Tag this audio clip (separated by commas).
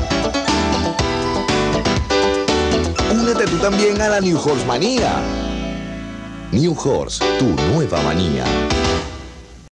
Music, Speech